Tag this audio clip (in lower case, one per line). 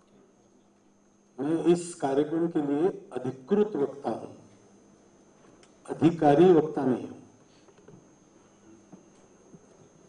speech
monologue
male speech